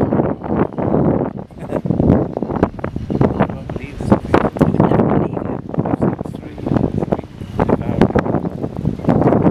Wind blowing over the sound of voices